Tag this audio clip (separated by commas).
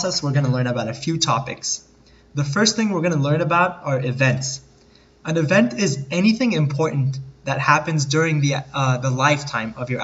Speech